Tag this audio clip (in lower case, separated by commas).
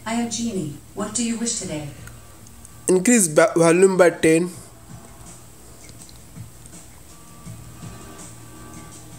speech, music